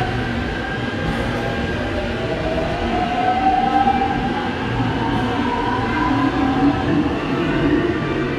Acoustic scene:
subway station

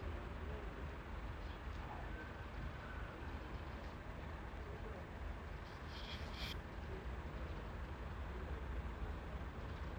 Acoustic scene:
residential area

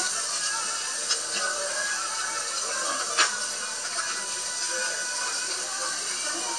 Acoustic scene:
restaurant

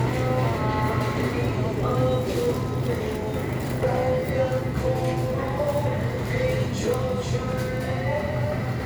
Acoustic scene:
crowded indoor space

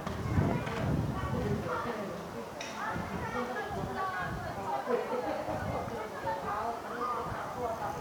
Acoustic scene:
park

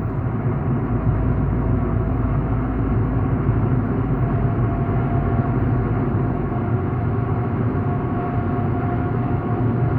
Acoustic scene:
car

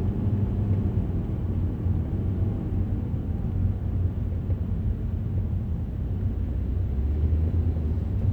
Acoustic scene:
car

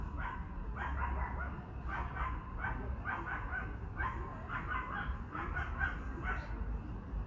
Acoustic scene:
park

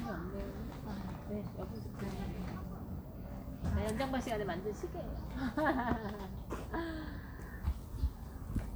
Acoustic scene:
residential area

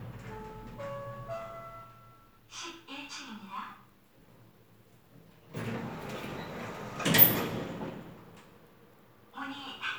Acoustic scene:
elevator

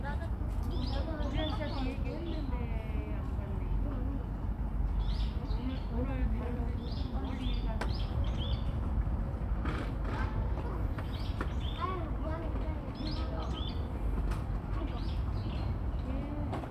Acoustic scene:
park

